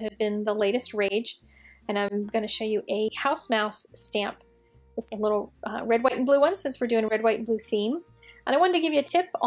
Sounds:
speech

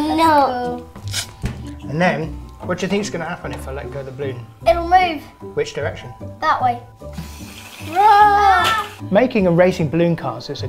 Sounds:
child speech

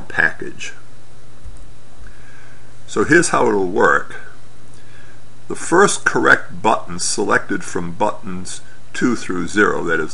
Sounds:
speech

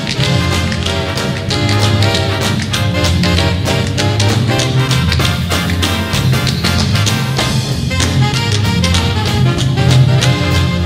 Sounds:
swing music
music
tap

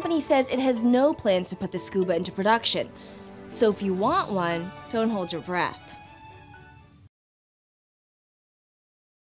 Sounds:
music
speech

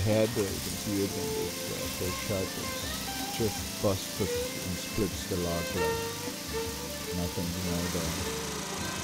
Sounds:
outside, rural or natural
music
speech

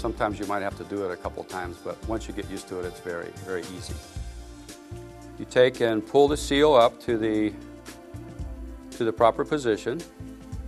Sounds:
music
speech

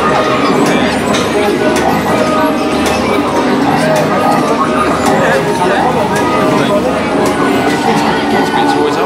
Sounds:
music
speech

